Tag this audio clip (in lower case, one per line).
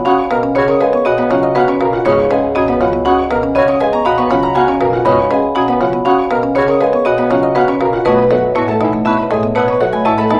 marimba
music